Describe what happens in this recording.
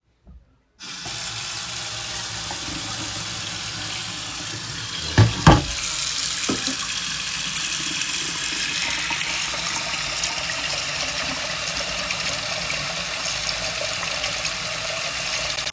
I turned on the kitchen tap and let the water run while placing dishes and cutlery into the sink.